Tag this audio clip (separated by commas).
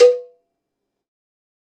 Bell, Cowbell